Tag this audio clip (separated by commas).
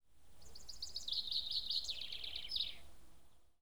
Bird vocalization, Bird, Animal, Wild animals